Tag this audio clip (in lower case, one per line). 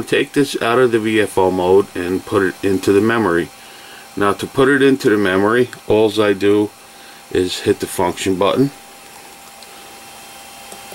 speech